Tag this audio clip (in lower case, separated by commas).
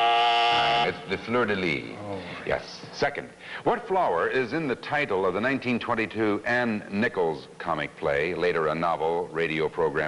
speech